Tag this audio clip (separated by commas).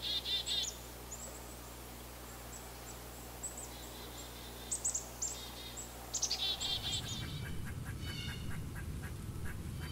wood thrush calling